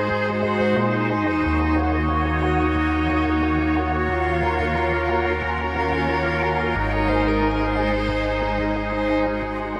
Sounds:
music
theme music

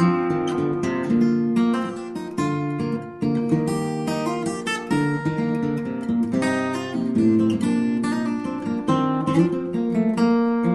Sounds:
music

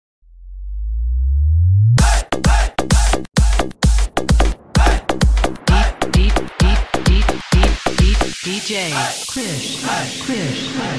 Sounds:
music

